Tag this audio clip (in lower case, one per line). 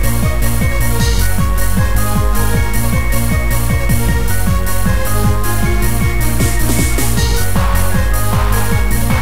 dance music
music